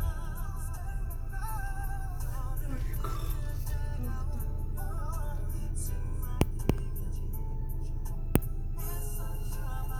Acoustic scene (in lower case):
car